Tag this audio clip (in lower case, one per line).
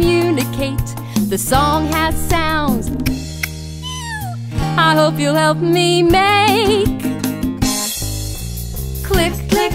music for children
music